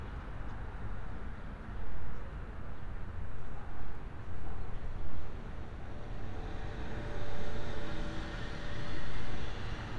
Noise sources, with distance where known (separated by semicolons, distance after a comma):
engine of unclear size